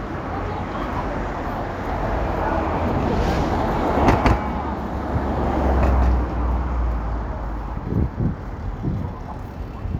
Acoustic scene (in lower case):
street